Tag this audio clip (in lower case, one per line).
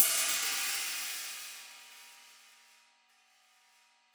musical instrument
percussion
cymbal
music
hi-hat